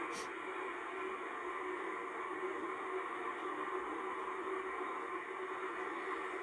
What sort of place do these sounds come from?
car